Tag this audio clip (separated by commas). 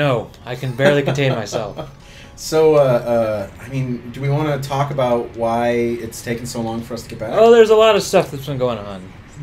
Speech